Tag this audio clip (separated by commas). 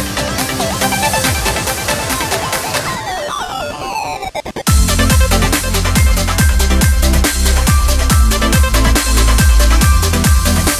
Music, Electronic music, Drum and bass, Trance music